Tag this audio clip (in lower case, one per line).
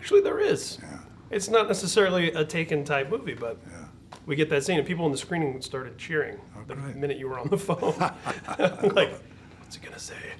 speech